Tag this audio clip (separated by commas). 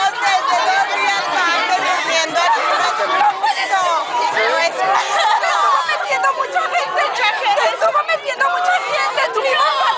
Speech